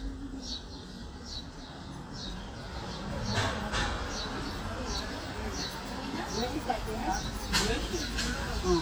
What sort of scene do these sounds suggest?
residential area